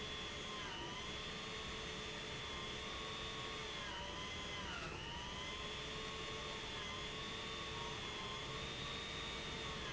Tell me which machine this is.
pump